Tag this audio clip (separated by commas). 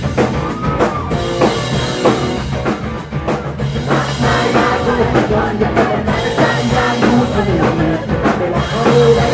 Music, Pop music